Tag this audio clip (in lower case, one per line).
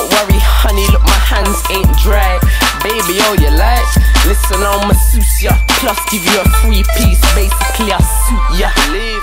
music